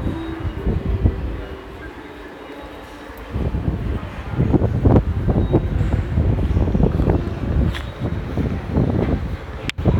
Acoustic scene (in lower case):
subway station